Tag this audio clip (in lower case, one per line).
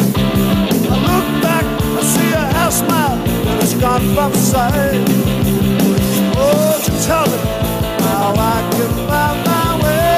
rock music
musical instrument
guitar
plucked string instrument
music